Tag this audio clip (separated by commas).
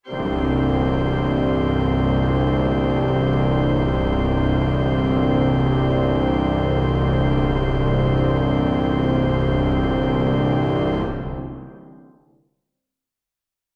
Musical instrument, Organ, Music, Keyboard (musical)